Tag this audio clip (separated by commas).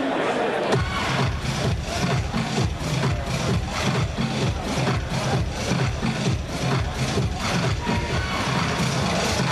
Speech, Music